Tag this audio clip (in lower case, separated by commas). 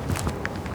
walk